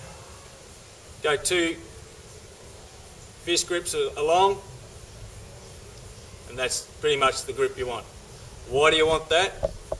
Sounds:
Speech, man speaking

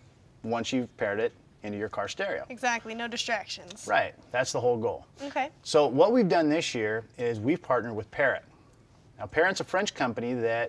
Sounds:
Speech

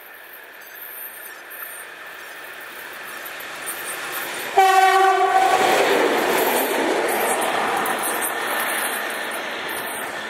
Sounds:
train whistling

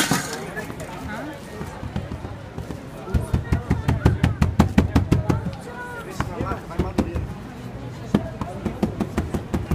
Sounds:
Speech

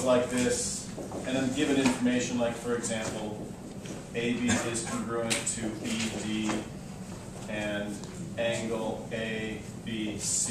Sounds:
Speech

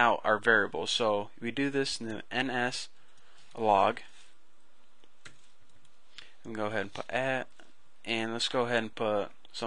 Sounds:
Computer keyboard, Speech

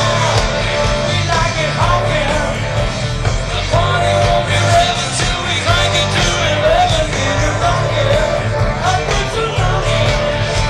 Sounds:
Music

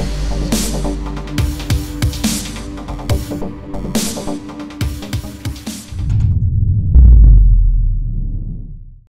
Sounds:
Music

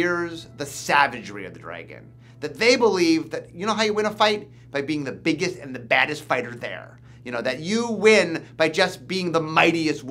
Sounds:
Speech

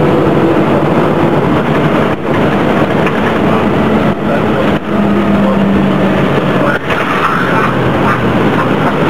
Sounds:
Vehicle, Bus

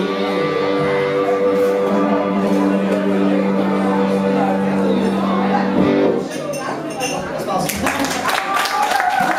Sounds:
Music, Speech, inside a large room or hall

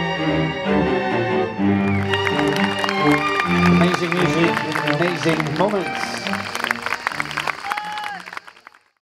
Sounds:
Music, Classical music

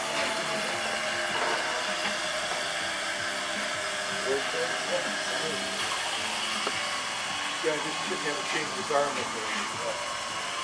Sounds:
Speech, Music, speedboat

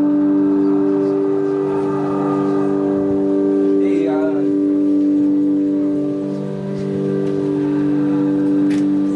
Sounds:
Speech, Music

